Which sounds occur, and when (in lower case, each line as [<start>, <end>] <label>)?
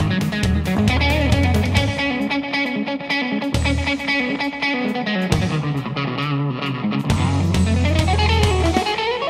[0.00, 9.25] music